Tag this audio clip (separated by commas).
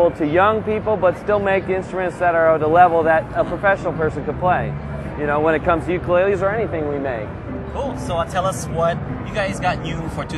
Speech, Music